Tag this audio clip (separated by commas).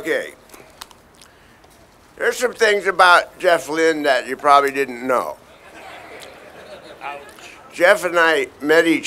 Speech